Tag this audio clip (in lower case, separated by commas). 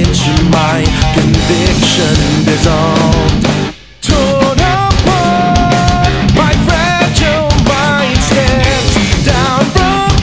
rhythm and blues, ska, music